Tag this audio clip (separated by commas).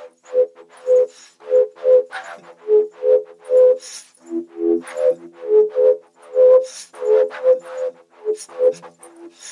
Music